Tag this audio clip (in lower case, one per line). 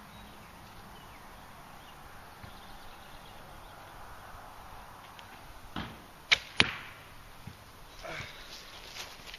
arrow